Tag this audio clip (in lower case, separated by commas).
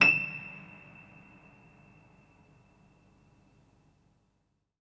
musical instrument, music, piano, keyboard (musical)